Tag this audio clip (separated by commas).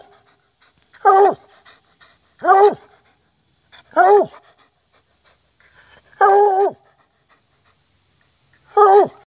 Yip